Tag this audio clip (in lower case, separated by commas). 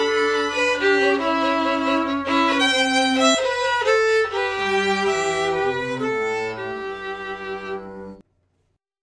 musical instrument, orchestra, bowed string instrument, music, violin, cello